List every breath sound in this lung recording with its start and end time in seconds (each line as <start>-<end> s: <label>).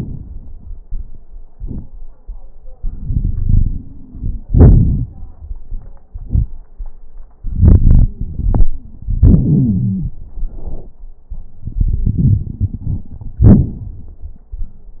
2.75-4.42 s: inhalation
3.12-4.42 s: wheeze
4.46-5.19 s: exhalation
4.46-5.19 s: crackles
7.40-9.24 s: inhalation
7.82-10.20 s: wheeze
9.21-10.20 s: exhalation
11.66-13.42 s: inhalation
11.66-13.42 s: crackles
13.43-15.00 s: exhalation
13.43-15.00 s: crackles